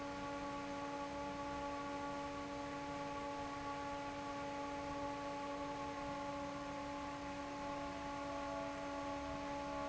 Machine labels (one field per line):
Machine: fan